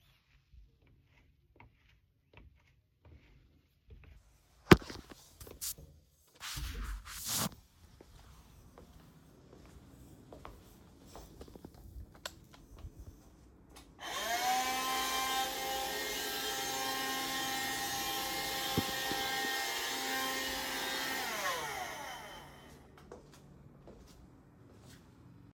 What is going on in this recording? I walked into the living room and vacuumed the floor.